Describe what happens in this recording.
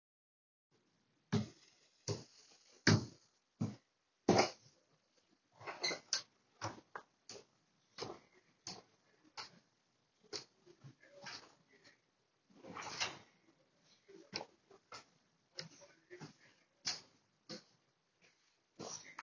I walked to the hallway door, opened it, stepped through, and closed it behind me.